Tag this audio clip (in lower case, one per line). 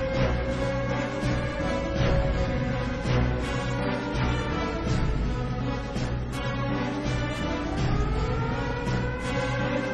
music